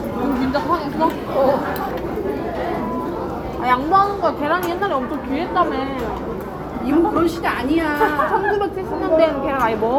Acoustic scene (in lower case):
restaurant